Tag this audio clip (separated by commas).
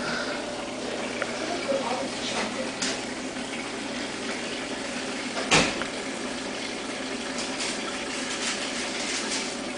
Boiling